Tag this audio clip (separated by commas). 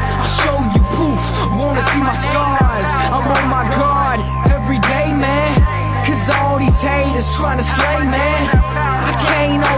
Music